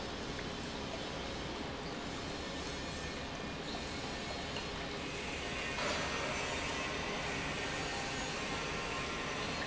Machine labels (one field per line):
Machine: pump